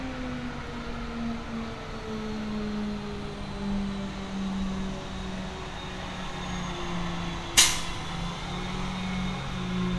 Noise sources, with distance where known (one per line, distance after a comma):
large-sounding engine